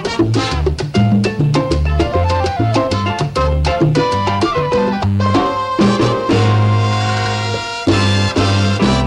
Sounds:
Music

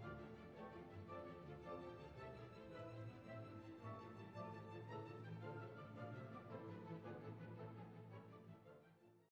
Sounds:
Music

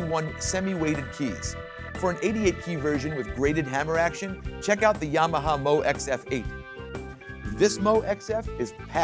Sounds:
Music, Speech, Sampler

